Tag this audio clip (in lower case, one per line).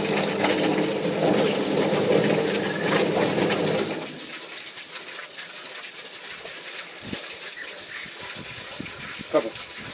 speech